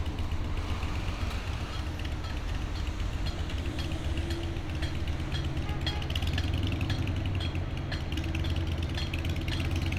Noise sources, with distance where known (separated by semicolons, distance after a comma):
unidentified impact machinery, near